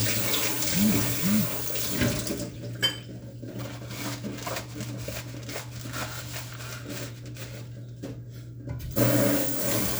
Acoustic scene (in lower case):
kitchen